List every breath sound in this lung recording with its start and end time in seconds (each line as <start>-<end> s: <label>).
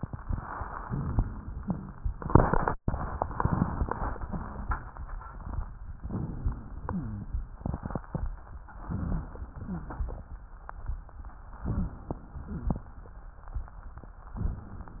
6.05-6.83 s: inhalation
6.83-7.48 s: exhalation
6.83-7.48 s: wheeze
8.90-9.54 s: inhalation
9.56-10.21 s: exhalation
9.56-10.21 s: wheeze
11.61-12.26 s: inhalation
12.31-12.96 s: exhalation
12.31-12.96 s: wheeze